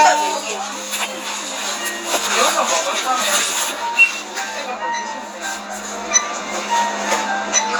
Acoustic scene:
crowded indoor space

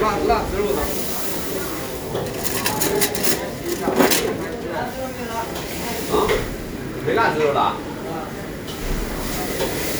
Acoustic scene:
restaurant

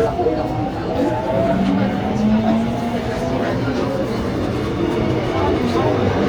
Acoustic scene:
subway train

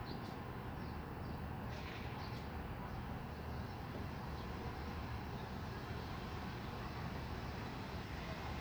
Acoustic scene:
residential area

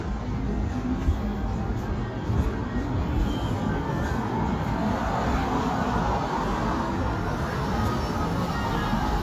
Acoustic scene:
street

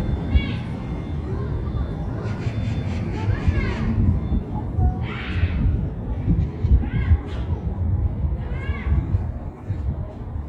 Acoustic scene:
residential area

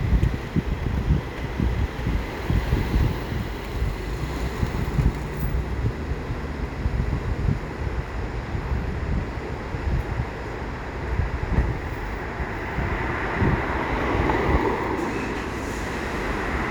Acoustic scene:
street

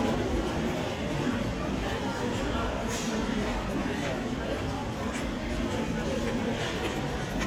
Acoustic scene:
crowded indoor space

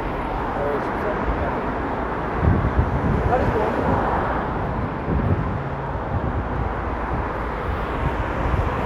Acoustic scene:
street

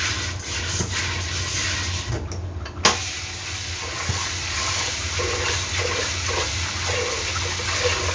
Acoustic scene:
kitchen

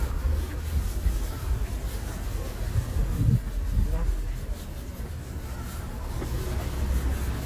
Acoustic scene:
residential area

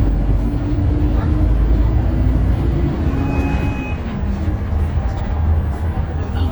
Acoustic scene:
bus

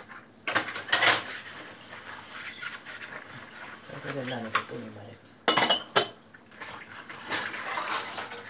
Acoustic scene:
kitchen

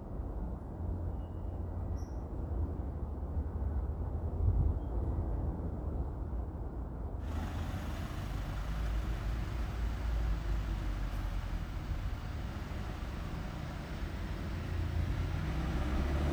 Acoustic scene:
residential area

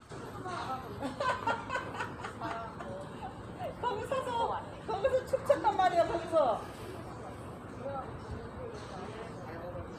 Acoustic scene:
park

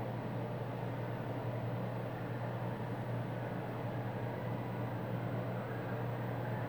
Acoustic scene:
elevator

